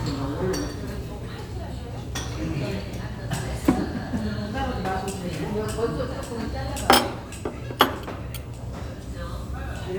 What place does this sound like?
restaurant